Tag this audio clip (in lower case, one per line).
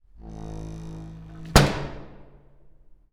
domestic sounds
door
slam